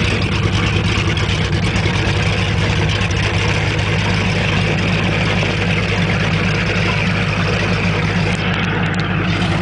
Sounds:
Motorboat, speedboat acceleration, Water vehicle

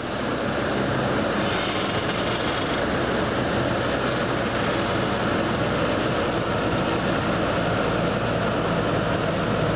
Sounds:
Vehicle, Truck, Mechanical fan

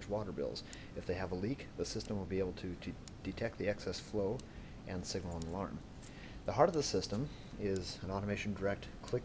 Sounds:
Speech

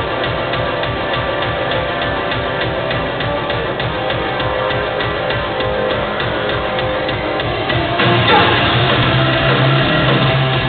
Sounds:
Music

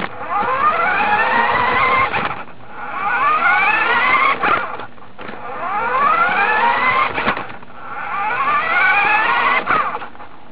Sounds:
Car

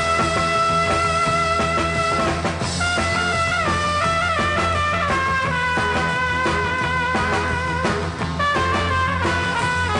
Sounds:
Music

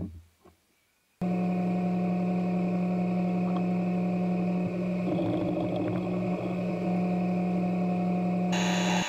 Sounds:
Tools

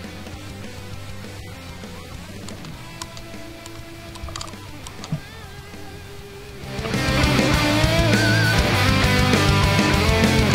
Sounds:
Speech, Music

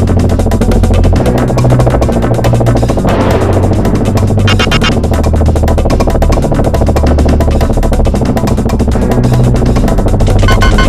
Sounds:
Music

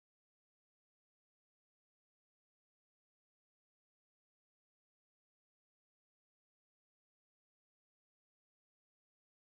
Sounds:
Music

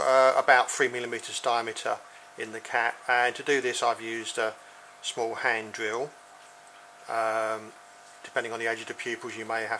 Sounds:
Speech

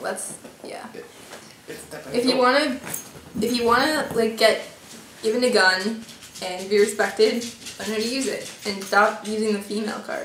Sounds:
Speech, inside a small room

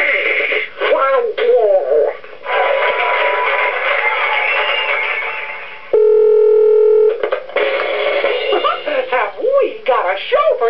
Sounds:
Music, Speech

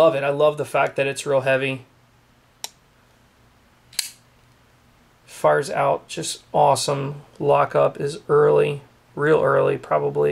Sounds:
Tools, inside a small room, Speech

